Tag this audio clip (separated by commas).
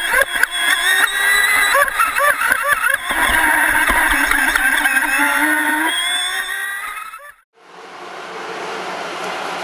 speedboat